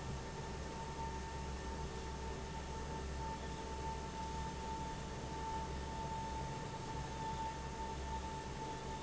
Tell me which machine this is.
fan